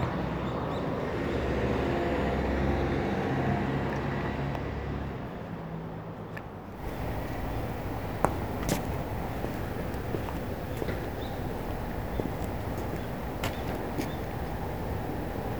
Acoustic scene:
residential area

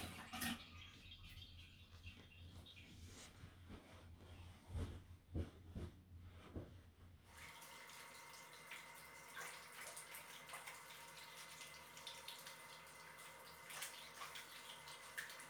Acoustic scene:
restroom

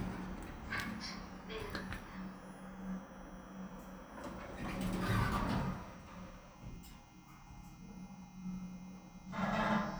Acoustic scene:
elevator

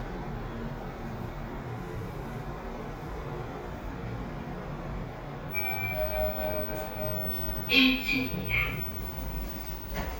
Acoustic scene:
elevator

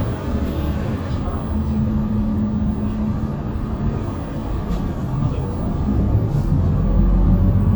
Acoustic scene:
bus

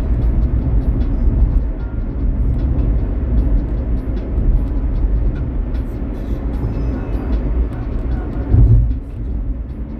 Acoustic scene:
car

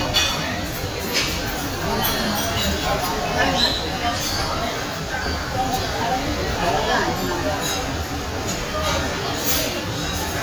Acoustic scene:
crowded indoor space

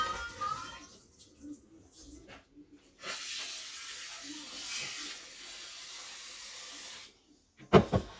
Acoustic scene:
kitchen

